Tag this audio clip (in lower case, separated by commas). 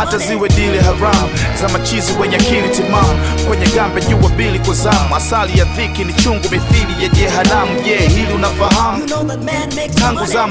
funk, music